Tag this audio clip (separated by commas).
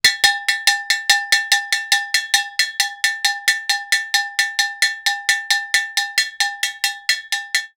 Bell